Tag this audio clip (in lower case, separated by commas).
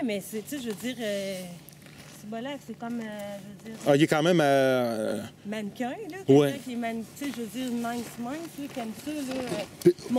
speech